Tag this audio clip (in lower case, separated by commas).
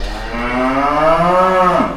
animal, livestock